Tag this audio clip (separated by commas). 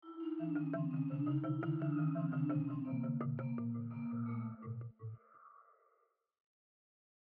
Musical instrument, Mallet percussion, Percussion, Music, Marimba